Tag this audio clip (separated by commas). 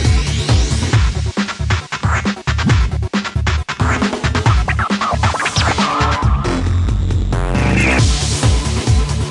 Music, Sound effect